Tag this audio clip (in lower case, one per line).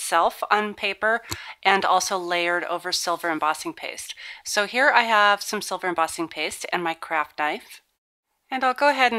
speech